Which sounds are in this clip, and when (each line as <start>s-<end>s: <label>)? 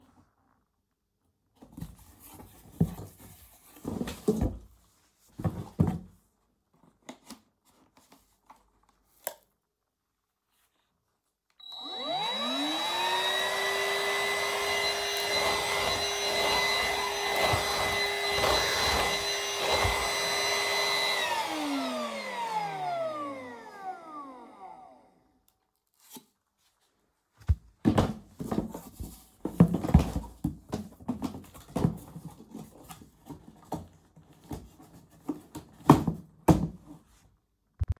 11.5s-25.3s: vacuum cleaner